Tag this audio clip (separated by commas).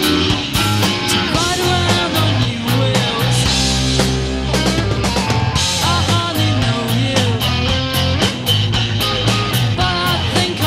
Music